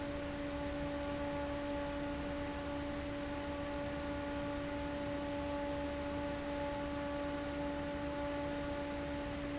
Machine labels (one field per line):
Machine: fan